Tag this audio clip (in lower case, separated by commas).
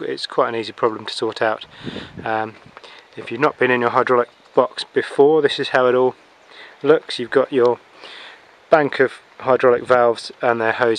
speech